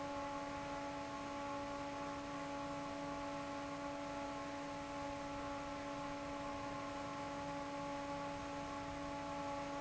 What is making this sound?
fan